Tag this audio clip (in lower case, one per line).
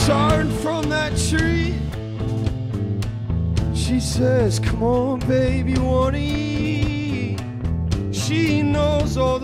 music